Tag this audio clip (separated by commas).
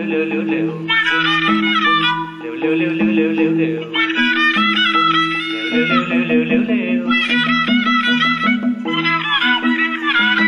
Music, Musical instrument